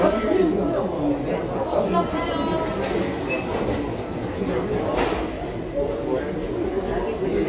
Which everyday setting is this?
crowded indoor space